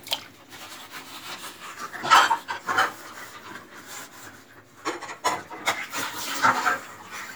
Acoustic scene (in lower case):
kitchen